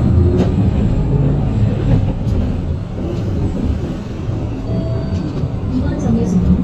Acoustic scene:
bus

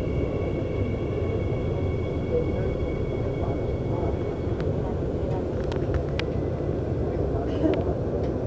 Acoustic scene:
subway train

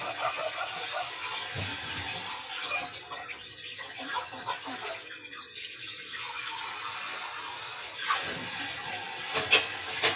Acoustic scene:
kitchen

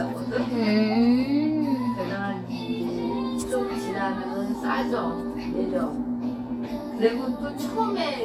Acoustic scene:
cafe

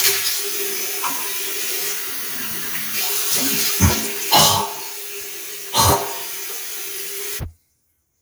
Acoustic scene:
restroom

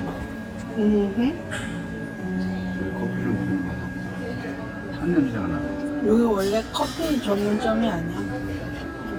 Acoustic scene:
crowded indoor space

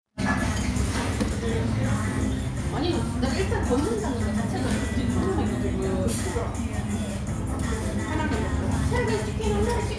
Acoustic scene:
restaurant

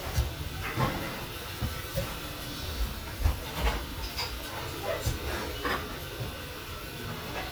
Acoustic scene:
restaurant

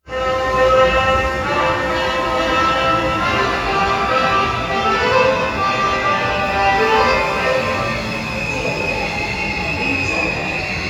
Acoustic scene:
subway station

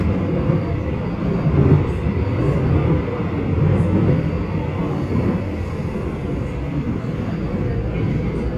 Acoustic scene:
subway train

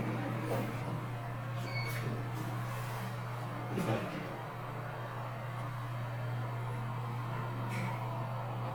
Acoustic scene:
elevator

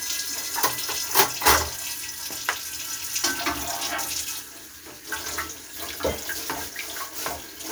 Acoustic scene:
kitchen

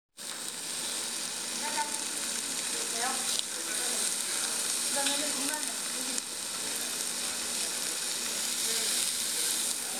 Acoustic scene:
restaurant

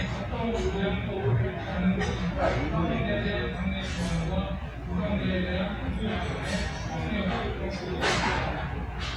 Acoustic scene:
restaurant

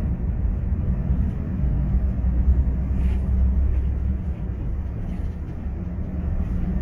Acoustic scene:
bus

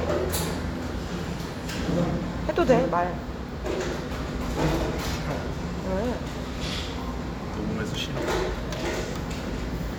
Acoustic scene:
cafe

